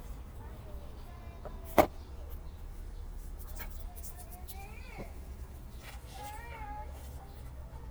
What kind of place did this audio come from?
park